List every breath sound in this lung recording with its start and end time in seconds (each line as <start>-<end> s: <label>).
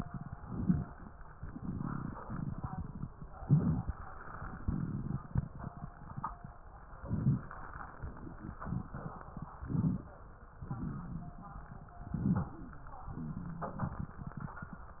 0.36-1.03 s: inhalation
0.36-1.04 s: crackles
1.44-3.09 s: exhalation
1.44-3.09 s: crackles
3.38-4.04 s: inhalation
3.38-4.04 s: crackles
4.61-6.26 s: exhalation
4.61-6.26 s: crackles
7.02-7.61 s: inhalation
7.02-7.61 s: crackles
8.10-9.54 s: exhalation
8.10-9.54 s: crackles
9.60-10.19 s: inhalation
9.60-10.19 s: crackles
10.51-11.96 s: exhalation
10.51-11.96 s: crackles
12.07-12.66 s: inhalation
12.07-12.66 s: crackles
13.11-14.55 s: exhalation
13.11-14.55 s: crackles